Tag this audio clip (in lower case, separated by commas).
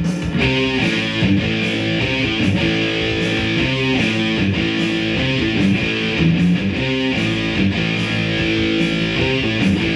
guitar, music, plucked string instrument, musical instrument, strum